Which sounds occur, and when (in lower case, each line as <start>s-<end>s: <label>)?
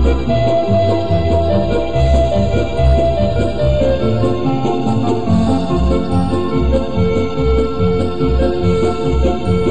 0.0s-9.7s: music